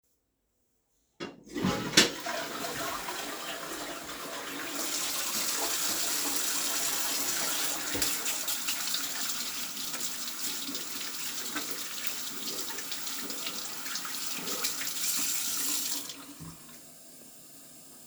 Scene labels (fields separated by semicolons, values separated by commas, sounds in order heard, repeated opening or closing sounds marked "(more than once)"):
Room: lavatory; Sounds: toilet flushing, running water